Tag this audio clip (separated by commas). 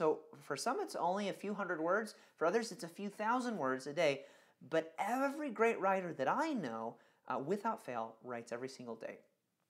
Speech